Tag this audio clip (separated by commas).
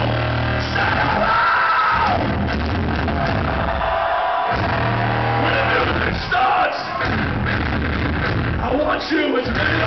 Music